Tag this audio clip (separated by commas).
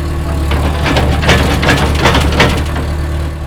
Mechanisms, Engine